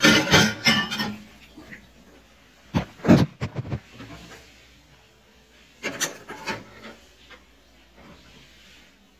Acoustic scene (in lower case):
kitchen